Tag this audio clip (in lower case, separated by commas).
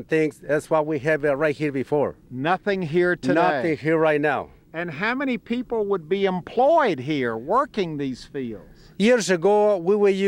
speech